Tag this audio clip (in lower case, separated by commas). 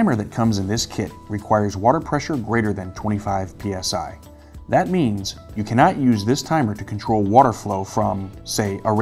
drip, speech, music